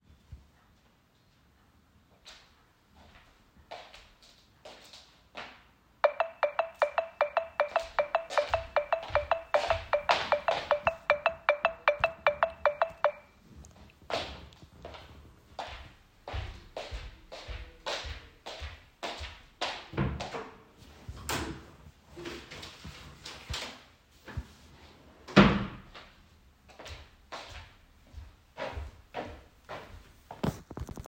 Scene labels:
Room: living room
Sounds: footsteps, phone ringing, wardrobe or drawer

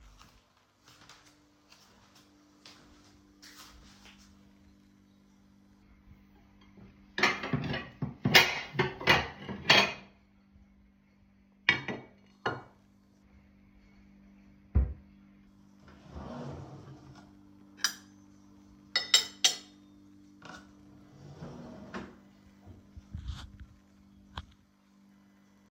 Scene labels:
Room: kitchen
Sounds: cutlery and dishes

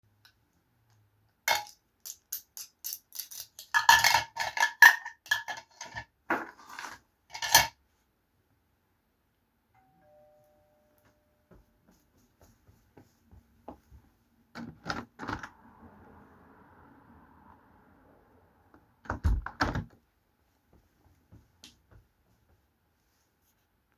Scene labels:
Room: kitchen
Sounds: cutlery and dishes, bell ringing, footsteps, window (more than once)

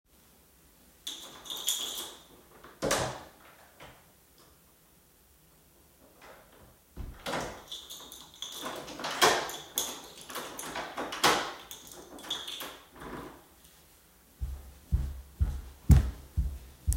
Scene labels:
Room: hallway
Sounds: keys, door (more than once), footsteps

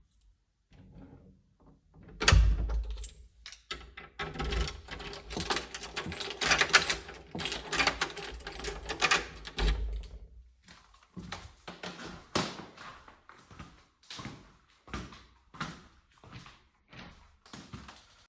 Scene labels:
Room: hallway, living room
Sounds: door, keys, footsteps

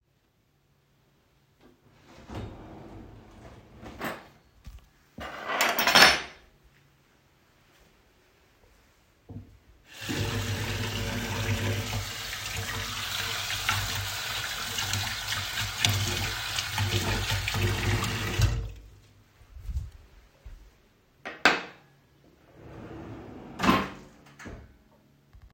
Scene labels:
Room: kitchen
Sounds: wardrobe or drawer (more than once), cutlery and dishes, running water

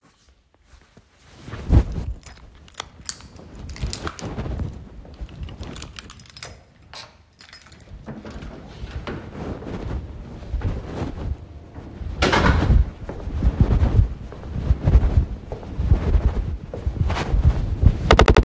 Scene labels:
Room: hallway, kitchen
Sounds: keys, door (more than once), footsteps

